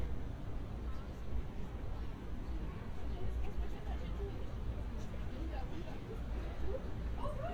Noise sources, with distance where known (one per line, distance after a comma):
person or small group talking, far